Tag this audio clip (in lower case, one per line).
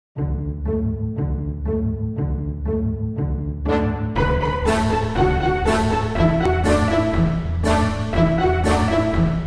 music